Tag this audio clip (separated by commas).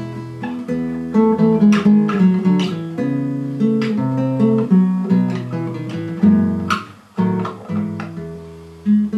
Music, Musical instrument, Plucked string instrument, Guitar, Acoustic guitar